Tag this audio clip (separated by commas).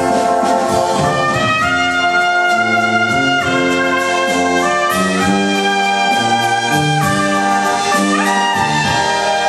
Trumpet, Clarinet, Brass instrument